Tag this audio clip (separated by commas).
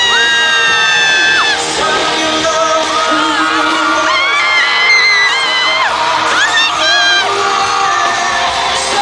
Speech, Music